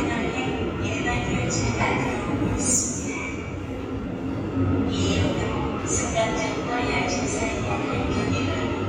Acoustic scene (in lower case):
subway station